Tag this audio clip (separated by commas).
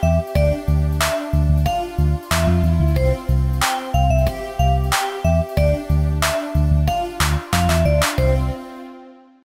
Music